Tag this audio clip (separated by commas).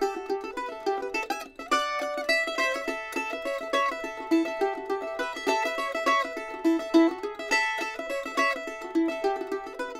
playing mandolin